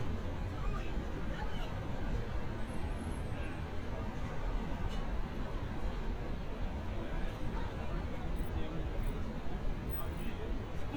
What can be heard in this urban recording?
person or small group shouting